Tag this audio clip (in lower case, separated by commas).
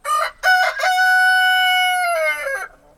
chicken, fowl, livestock, animal